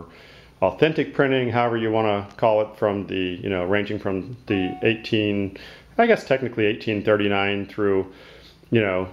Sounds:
speech

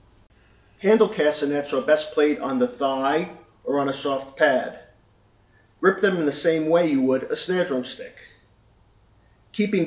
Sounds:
speech

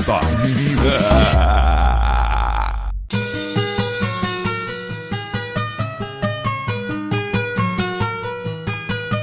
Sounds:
speech
music

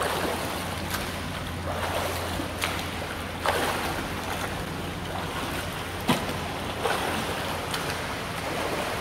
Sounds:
swimming

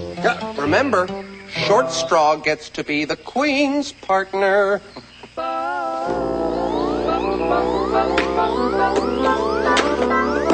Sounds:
speech
music

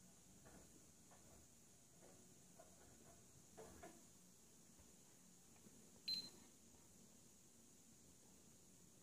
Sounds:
bleep

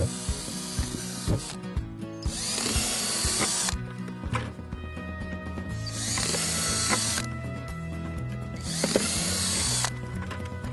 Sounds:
music

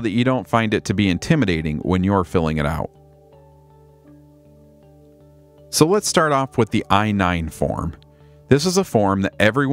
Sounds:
music
speech

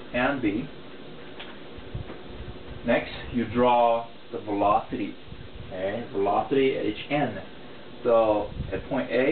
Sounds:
inside a small room
speech

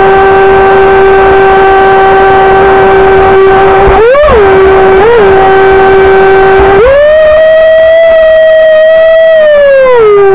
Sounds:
speedboat
vehicle
water vehicle

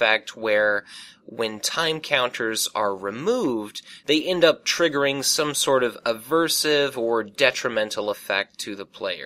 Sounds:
narration

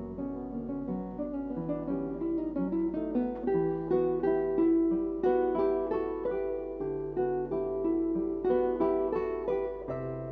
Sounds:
plucked string instrument
musical instrument
music

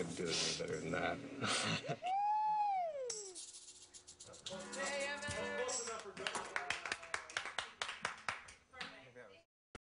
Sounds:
inside a small room
speech
music

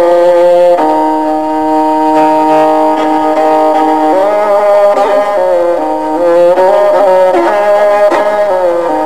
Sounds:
violin
music
musical instrument

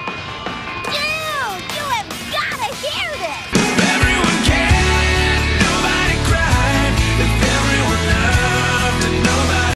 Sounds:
music
speech

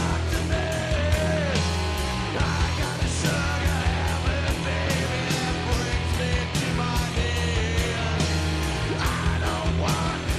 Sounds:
music

